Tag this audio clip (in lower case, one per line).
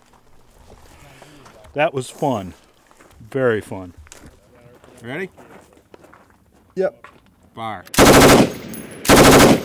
speech
machine gun